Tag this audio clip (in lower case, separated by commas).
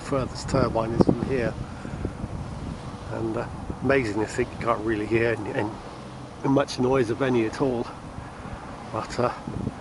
wind noise (microphone), wind